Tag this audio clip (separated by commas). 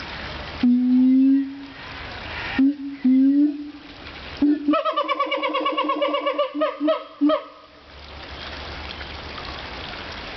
gibbon howling